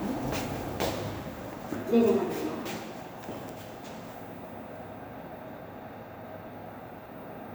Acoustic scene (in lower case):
elevator